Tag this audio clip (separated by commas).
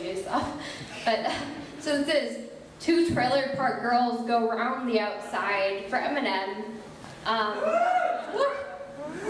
Speech